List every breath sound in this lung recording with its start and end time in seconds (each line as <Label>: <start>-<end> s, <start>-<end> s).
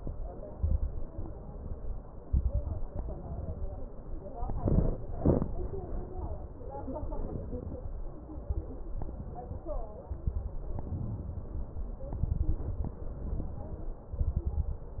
Inhalation: 0.49-1.10 s, 2.26-2.87 s, 8.34-8.88 s, 10.01-10.55 s, 12.18-12.98 s, 14.21-15.00 s
Exhalation: 1.16-2.04 s, 2.91-3.90 s, 8.97-9.62 s, 10.64-11.52 s, 13.05-13.93 s
Crackles: 0.49-1.10 s, 2.26-2.87 s, 8.34-8.88 s, 10.01-10.55 s, 12.18-12.98 s, 14.21-15.00 s